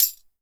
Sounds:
musical instrument, tambourine, percussion, music

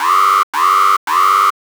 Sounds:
alarm

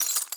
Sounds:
shatter, glass

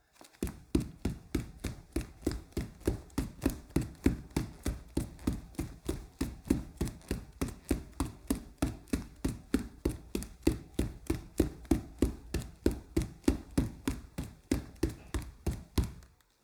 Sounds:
run

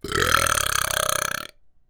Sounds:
burping

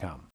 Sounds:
man speaking, human voice, speech

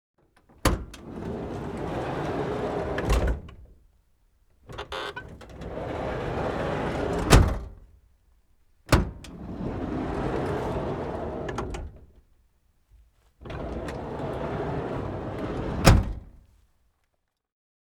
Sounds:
sliding door, door, motor vehicle (road), home sounds, vehicle

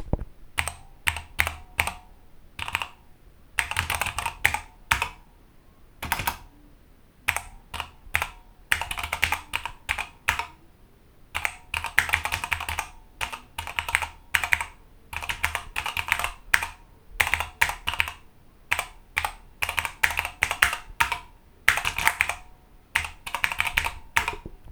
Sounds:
home sounds, computer keyboard, typing

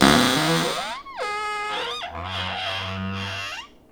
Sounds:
cupboard open or close, domestic sounds

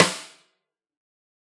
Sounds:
music, percussion, drum, musical instrument, snare drum

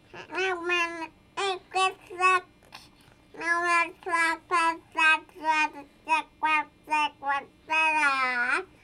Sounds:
speech, human voice

